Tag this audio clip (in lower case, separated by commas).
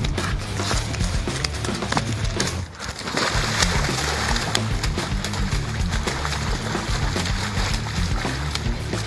music